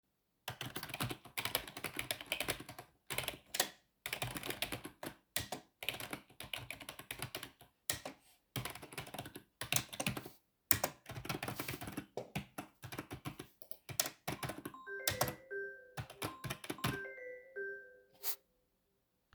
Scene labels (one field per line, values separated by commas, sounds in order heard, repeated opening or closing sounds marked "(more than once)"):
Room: bedroom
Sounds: keyboard typing, phone ringing